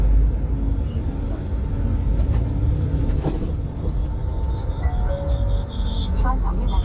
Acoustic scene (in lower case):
bus